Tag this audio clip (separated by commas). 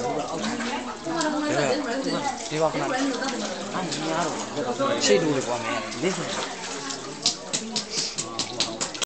inside a public space, Speech